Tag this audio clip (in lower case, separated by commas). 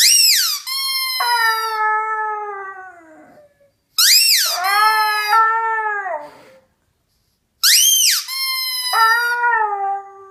dog howling